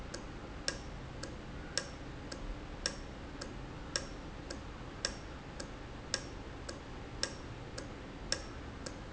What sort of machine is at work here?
valve